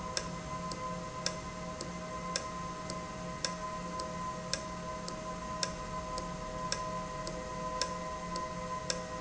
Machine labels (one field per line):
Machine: valve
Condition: normal